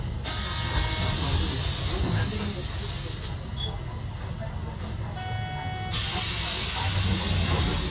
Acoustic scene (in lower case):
bus